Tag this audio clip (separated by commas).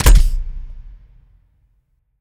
Tools